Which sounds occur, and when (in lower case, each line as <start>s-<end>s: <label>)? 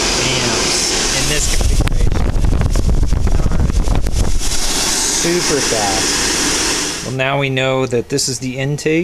0.0s-1.8s: mechanisms
1.0s-1.8s: man speaking
1.3s-4.4s: wind
4.2s-9.0s: mechanisms
5.0s-6.1s: man speaking
7.2s-9.0s: man speaking